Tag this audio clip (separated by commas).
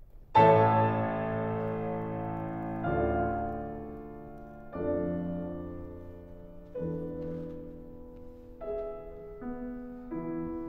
Musical instrument, Music